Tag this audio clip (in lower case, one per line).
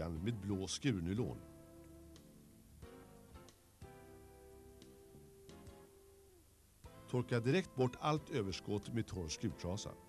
music
speech